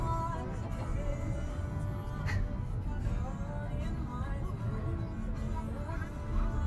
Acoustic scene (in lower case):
car